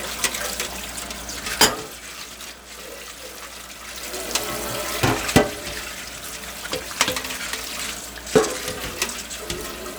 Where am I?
in a kitchen